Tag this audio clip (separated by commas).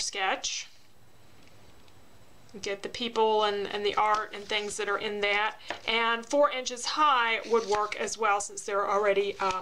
Speech